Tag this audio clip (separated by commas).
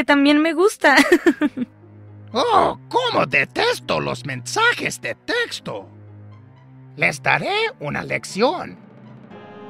Music, Speech